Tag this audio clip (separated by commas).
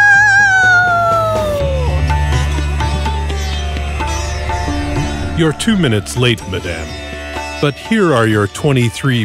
Sitar